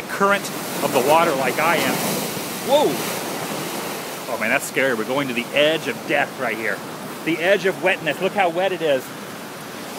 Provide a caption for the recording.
A man talking, waves crashing and wind blowing